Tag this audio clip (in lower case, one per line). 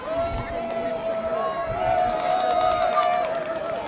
human group actions
crowd